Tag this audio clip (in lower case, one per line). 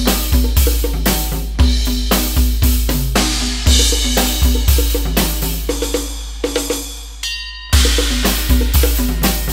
playing bass drum